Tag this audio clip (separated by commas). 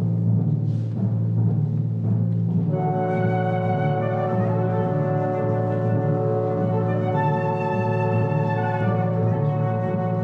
Music, Musical instrument, Flute, Orchestra, Timpani